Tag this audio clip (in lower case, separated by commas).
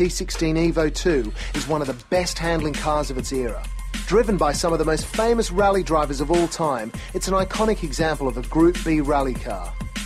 speech, music